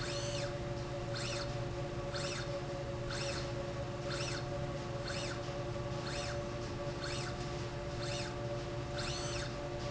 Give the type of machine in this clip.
slide rail